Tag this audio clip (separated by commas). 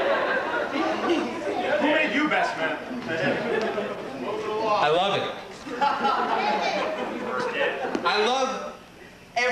Male speech, Speech, monologue